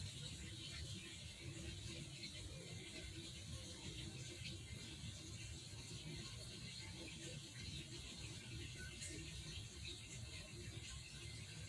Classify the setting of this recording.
park